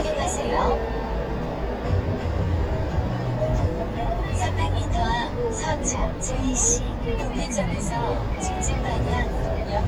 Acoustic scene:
car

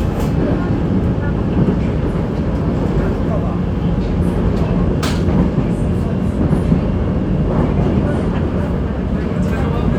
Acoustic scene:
subway train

